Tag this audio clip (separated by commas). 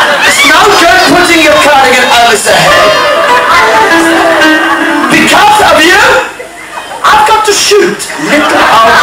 Laughter, Speech, Music